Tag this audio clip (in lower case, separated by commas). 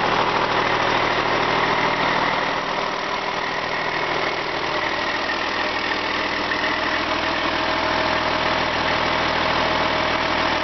medium engine (mid frequency), engine